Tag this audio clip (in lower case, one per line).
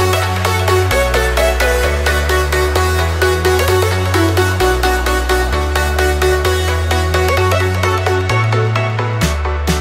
music
musical instrument